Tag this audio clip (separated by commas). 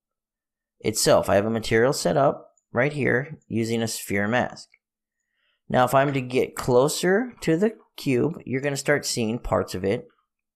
Speech